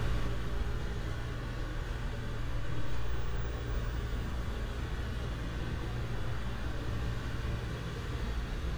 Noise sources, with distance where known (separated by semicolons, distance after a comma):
engine of unclear size